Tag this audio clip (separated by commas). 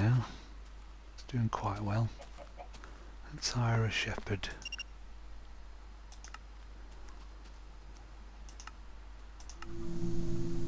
Speech